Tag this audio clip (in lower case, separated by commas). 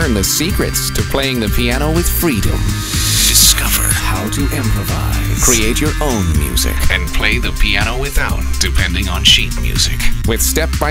music, speech